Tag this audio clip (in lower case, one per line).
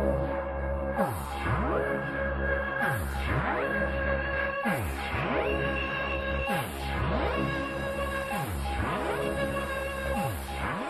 music